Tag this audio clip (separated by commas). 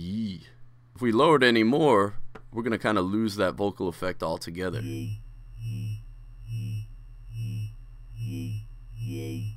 Electronic music, Sampler, Music, Speech